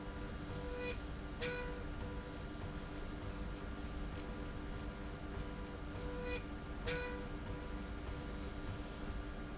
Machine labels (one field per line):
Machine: slide rail